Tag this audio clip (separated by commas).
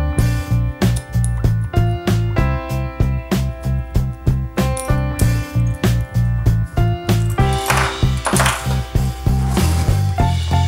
Music